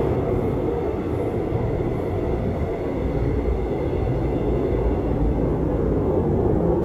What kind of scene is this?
subway train